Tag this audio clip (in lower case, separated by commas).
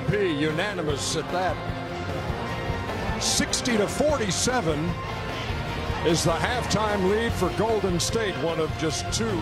speech, music